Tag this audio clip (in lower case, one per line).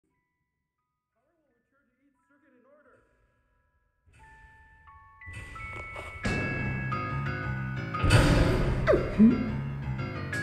speech
music
silence